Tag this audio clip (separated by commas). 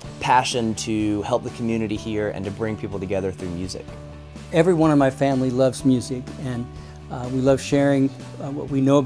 Background music, Music, Speech